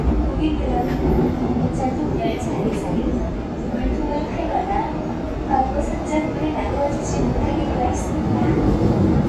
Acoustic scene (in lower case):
subway train